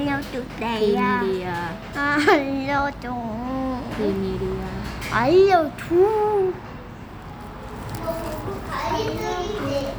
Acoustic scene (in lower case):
cafe